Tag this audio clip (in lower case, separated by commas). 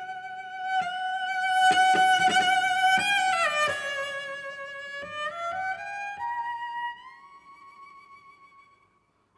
violin, music